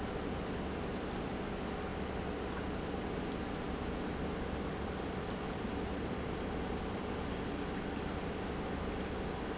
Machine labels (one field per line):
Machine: pump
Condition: normal